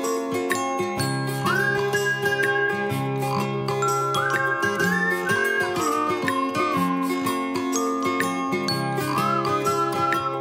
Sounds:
Music

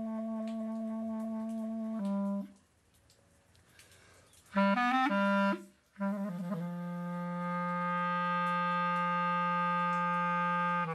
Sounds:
inside a small room, Music

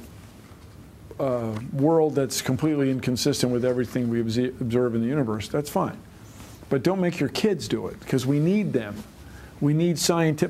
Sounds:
Speech

